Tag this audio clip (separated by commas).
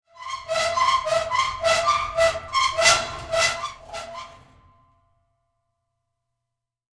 Squeak